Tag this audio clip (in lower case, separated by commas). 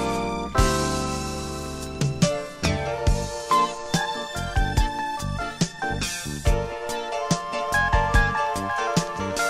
music, sampler